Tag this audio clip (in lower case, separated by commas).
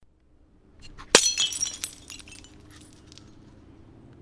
glass, crushing, shatter